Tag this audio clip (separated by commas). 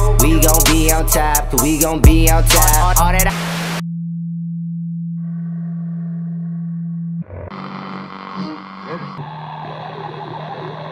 Music